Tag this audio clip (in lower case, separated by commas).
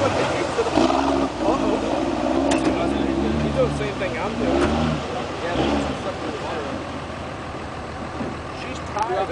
speech